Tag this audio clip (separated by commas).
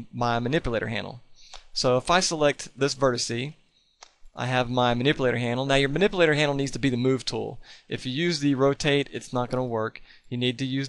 Speech